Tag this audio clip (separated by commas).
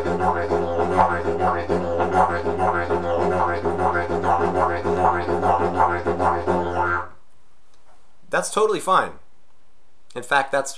playing didgeridoo